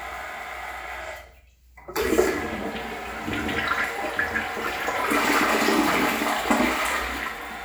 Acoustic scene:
restroom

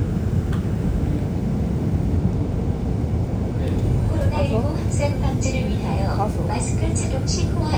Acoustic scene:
subway train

